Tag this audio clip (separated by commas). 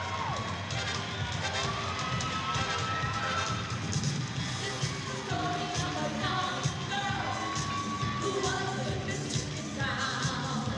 Music